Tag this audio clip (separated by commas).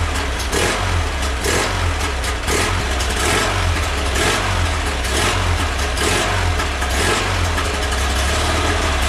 Engine, Idling